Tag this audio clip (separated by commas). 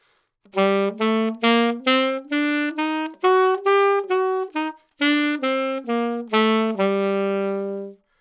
Music, Musical instrument, Wind instrument